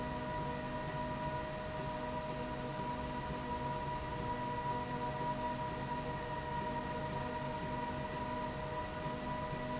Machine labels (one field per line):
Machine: slide rail